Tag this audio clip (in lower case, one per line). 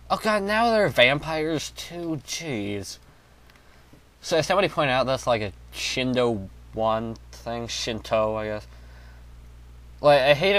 speech